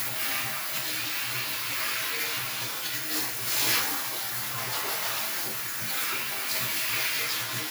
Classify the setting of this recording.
restroom